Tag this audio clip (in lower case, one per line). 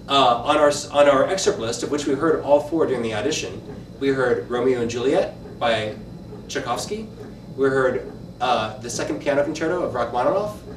speech